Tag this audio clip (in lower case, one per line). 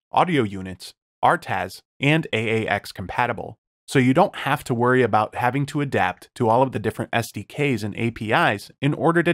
speech